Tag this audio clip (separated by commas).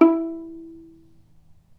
Musical instrument, Bowed string instrument, Music